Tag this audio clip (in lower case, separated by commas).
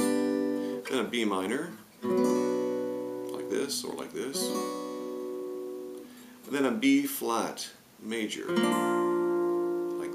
speech, plucked string instrument, music, musical instrument, strum, guitar, acoustic guitar